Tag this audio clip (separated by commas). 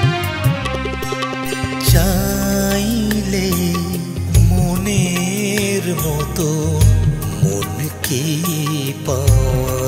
people humming